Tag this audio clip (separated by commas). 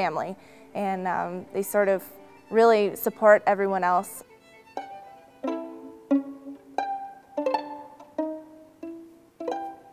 Violin, Bowed string instrument, Pizzicato